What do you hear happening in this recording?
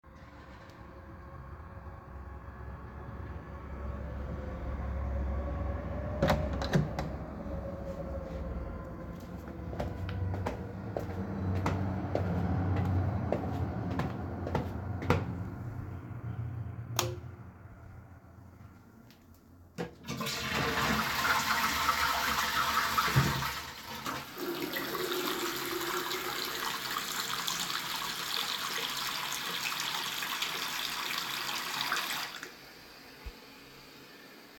The bathroom door was opened and footsteps entered the room. The light was switched on, the toilet was flushed, and with a partial overlap the tap was turned on.